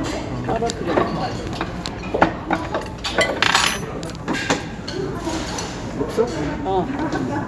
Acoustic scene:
restaurant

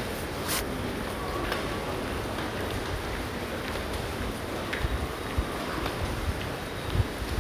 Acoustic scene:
subway station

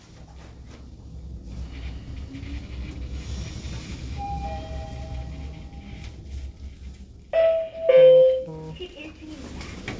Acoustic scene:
elevator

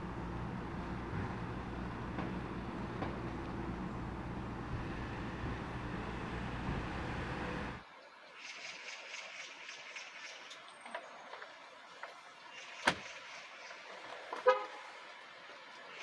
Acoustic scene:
residential area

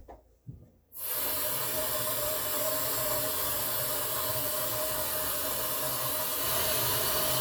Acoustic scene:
kitchen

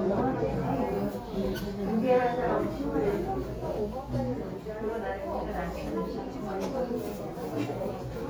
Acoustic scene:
crowded indoor space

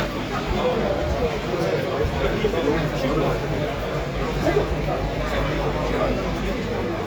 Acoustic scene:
crowded indoor space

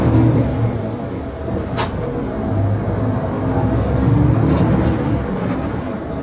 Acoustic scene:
bus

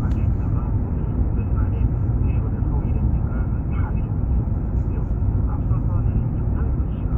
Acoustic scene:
car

